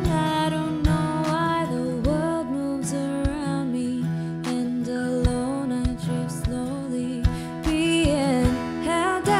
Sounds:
Soul music, Music

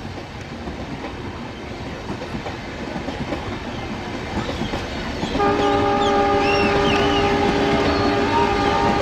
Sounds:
train horning

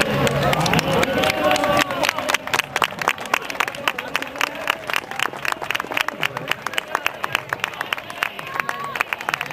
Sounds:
outside, urban or man-made, Crowd, Speech

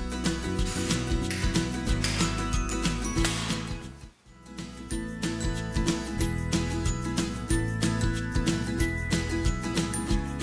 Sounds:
Music, Bicycle

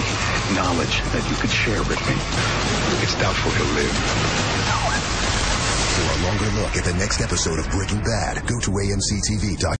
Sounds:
Speech, Music

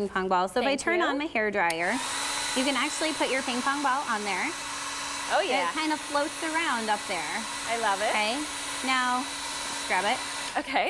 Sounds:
Speech

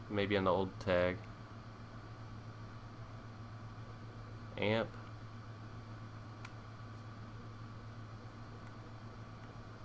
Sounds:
Speech

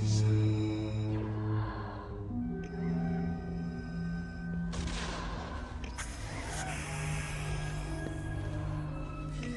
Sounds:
Music

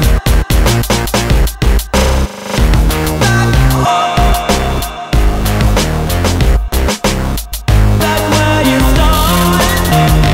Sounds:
Drum and bass, Music

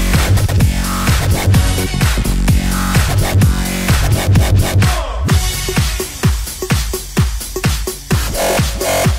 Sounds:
Disco, Music, Electronic music, Electronic dance music

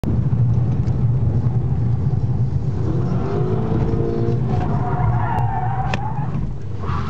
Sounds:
Speech

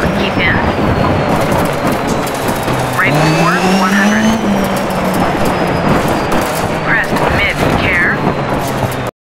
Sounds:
Speech

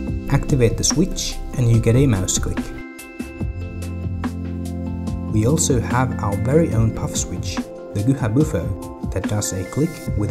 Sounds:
Speech, Music

